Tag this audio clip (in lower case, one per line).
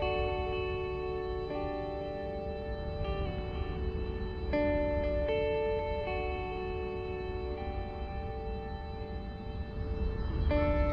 music